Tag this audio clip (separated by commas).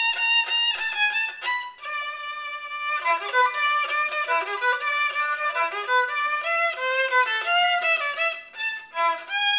fiddle, Musical instrument, Music